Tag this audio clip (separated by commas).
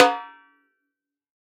Snare drum, Music, Drum, Percussion, Musical instrument